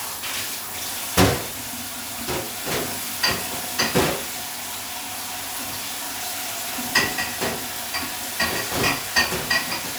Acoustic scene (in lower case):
kitchen